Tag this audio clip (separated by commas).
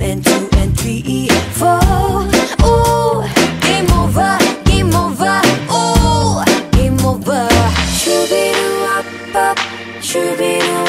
Happy music, Music